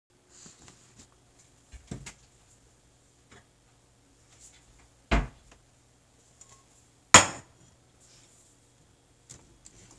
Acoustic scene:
kitchen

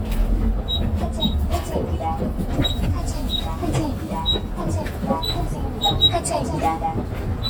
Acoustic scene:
bus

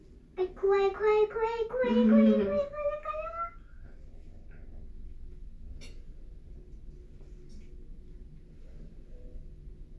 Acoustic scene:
elevator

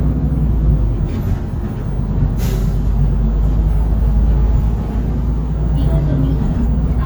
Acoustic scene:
bus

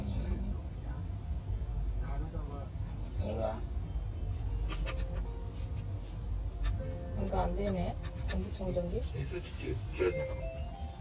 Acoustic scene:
car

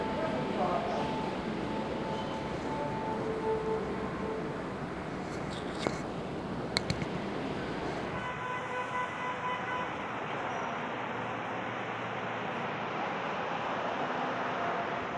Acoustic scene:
subway station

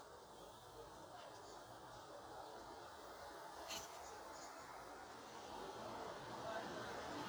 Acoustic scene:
residential area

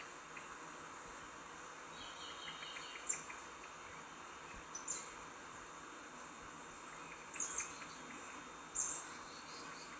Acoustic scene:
park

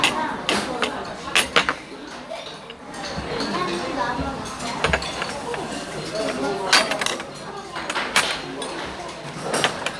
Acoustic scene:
restaurant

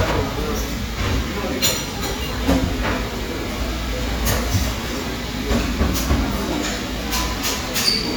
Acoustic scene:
cafe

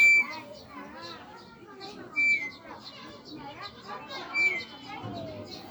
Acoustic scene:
residential area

